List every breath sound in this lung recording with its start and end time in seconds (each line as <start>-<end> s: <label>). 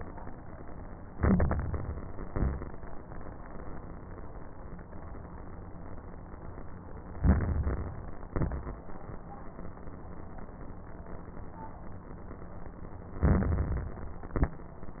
1.06-1.99 s: inhalation
1.06-1.99 s: crackles
2.20-2.76 s: exhalation
2.20-2.76 s: crackles
7.16-8.09 s: inhalation
7.16-8.09 s: crackles
8.30-8.86 s: exhalation
8.30-8.86 s: crackles
13.22-14.15 s: inhalation
13.22-14.15 s: crackles
14.23-14.68 s: exhalation
14.23-14.68 s: crackles